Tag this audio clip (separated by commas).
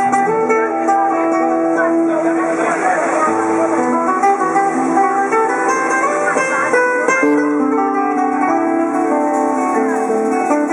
Strum, Acoustic guitar, Guitar, Musical instrument, Music, Speech, Plucked string instrument